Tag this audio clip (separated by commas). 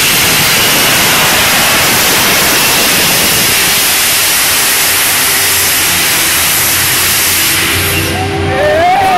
Engine